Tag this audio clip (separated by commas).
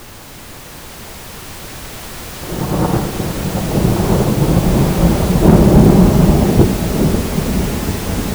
Rain, Thunderstorm, Water